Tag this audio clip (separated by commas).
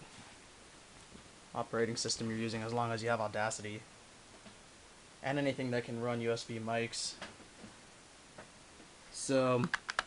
Speech